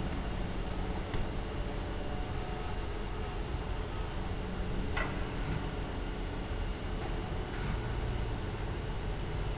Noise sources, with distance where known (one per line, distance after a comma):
non-machinery impact, near